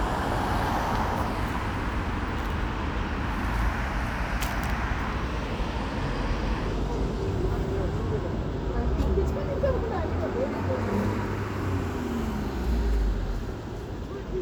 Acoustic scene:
street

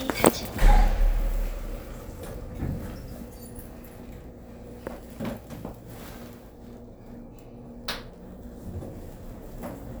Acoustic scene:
elevator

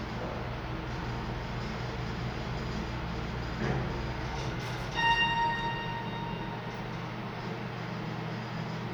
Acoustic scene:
elevator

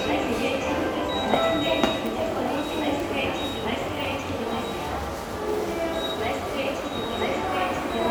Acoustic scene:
subway station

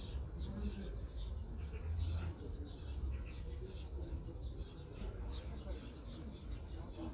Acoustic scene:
park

